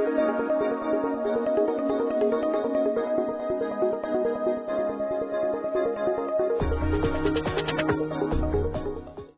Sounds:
music

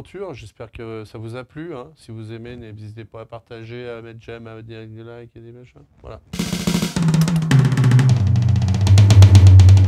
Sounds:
playing bass drum

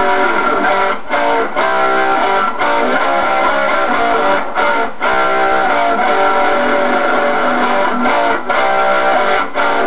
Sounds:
plucked string instrument
musical instrument
music
strum

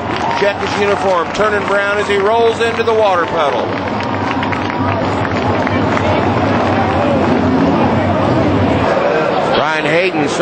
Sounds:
speech

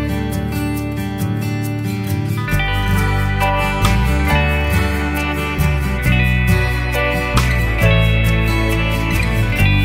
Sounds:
music

